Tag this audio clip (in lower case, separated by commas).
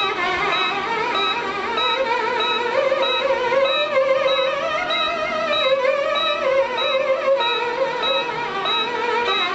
musical instrument, fiddle, music